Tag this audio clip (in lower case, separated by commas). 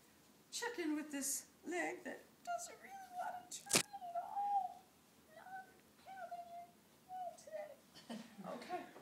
inside a large room or hall, speech